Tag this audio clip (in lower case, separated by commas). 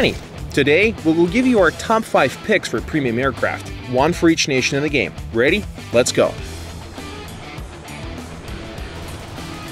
speech, music